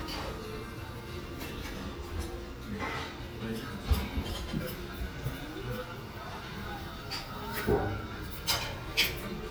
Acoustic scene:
restaurant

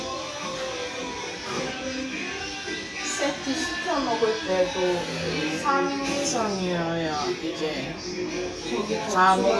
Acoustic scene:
restaurant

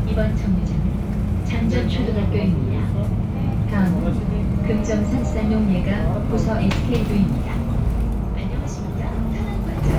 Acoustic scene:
bus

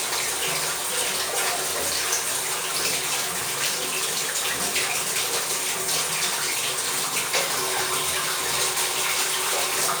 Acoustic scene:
restroom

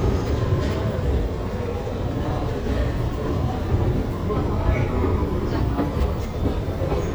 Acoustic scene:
subway station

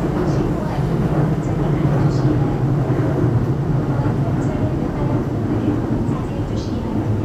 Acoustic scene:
subway train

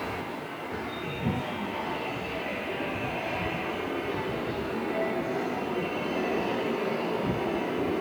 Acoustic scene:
subway station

